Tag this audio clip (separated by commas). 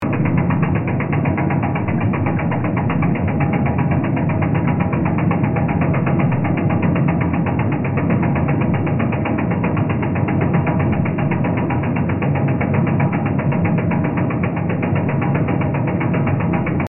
Mechanisms